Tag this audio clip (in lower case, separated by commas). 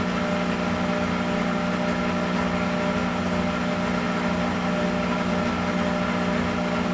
engine